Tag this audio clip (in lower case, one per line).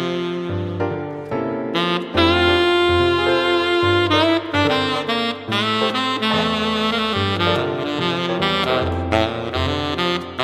brass instrument
saxophone
playing saxophone